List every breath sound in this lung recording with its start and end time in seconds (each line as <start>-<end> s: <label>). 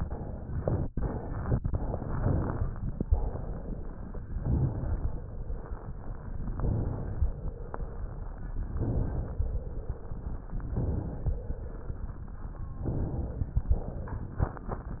0.00-0.52 s: exhalation
0.56-1.43 s: inhalation
1.43-2.15 s: exhalation
2.15-3.02 s: inhalation
3.05-4.29 s: exhalation
4.34-6.41 s: inhalation
6.51-8.58 s: inhalation
8.72-10.68 s: inhalation
10.74-11.40 s: inhalation
11.40-12.10 s: exhalation
12.81-13.61 s: inhalation
13.65-14.46 s: exhalation